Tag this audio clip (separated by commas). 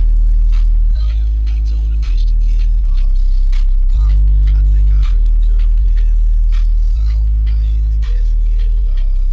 Music